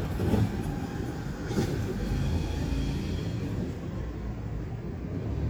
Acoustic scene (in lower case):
residential area